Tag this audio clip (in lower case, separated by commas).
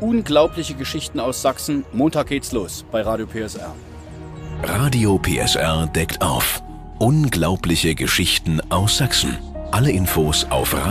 speech, music